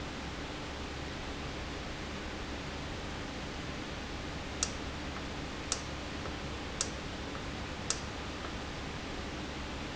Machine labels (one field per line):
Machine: valve